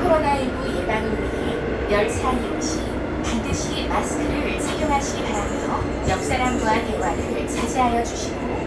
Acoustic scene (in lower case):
subway train